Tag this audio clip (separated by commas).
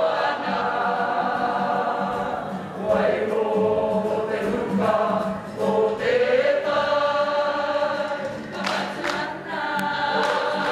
Music, Female singing, Choir